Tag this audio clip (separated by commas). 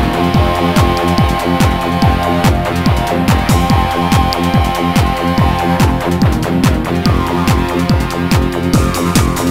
Strum, Plucked string instrument, Electronic music, Music, Musical instrument, Guitar, Techno